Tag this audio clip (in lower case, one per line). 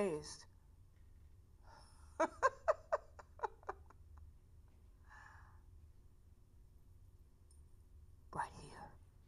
speech
inside a large room or hall